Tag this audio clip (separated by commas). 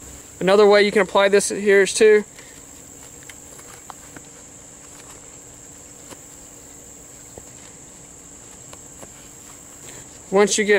Speech, outside, rural or natural